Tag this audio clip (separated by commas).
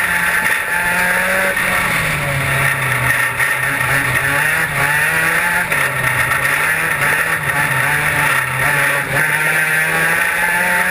Motor vehicle (road), Vehicle, Car